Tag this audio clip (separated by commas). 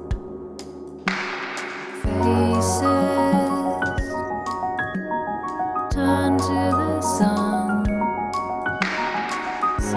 Music